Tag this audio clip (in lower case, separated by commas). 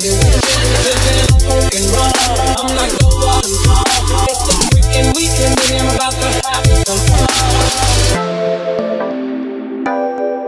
music, drum and bass